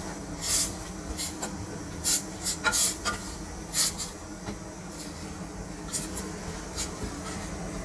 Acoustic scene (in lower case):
kitchen